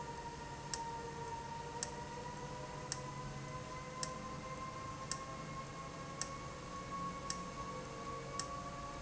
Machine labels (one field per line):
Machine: valve